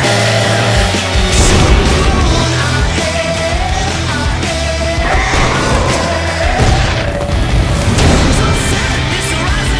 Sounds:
Music

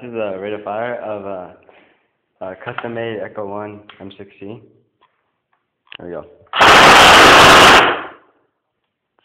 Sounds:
Speech

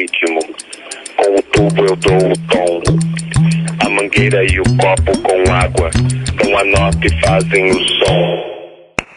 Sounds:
tinkle

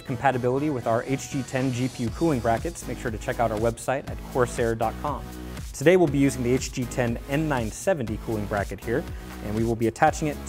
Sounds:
Speech, Music

